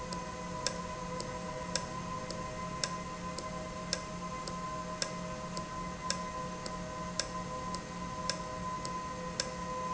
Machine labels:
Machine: valve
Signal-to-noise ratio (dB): -6 dB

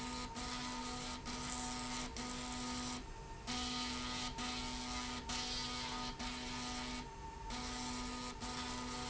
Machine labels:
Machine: slide rail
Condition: abnormal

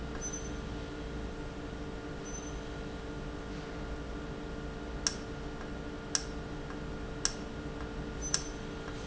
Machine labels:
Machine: valve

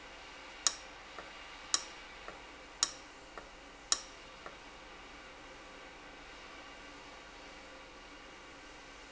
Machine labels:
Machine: valve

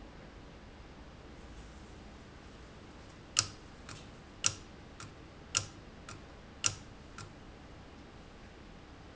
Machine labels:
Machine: valve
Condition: abnormal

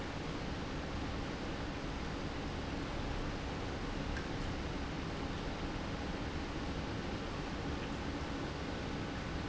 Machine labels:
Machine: pump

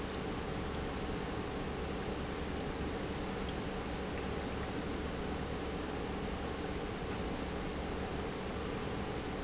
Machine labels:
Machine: pump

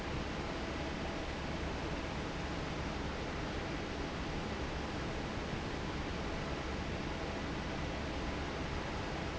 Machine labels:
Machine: fan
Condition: normal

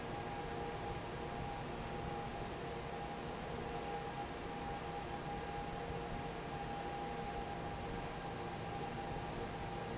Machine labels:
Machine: fan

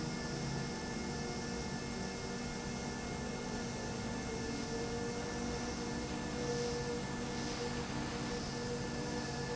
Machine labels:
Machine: pump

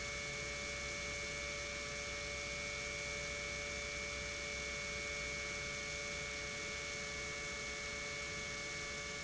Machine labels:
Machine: pump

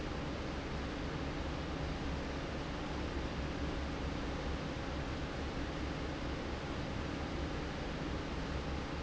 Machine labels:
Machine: fan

